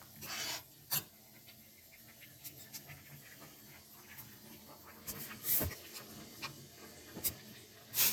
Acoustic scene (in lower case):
kitchen